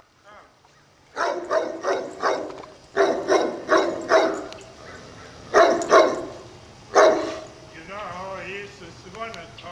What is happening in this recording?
A dog is barking in the distance and begins to get closer. The neighbor of the dog greets his barking by talking to the dog